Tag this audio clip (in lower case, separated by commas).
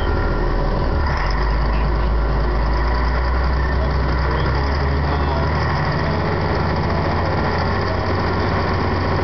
speech